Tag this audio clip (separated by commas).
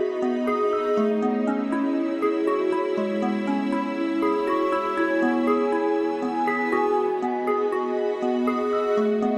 Background music